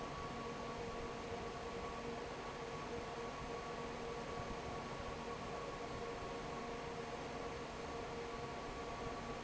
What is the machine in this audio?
fan